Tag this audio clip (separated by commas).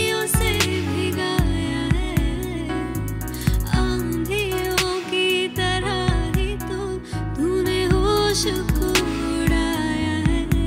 female singing